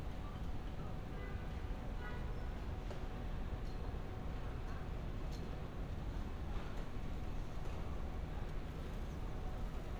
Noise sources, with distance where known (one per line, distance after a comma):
background noise